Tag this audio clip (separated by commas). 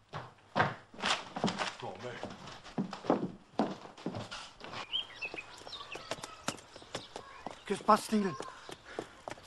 inside a small room, Speech